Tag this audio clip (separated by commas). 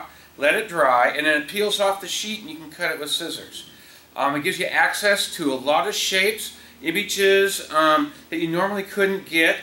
Speech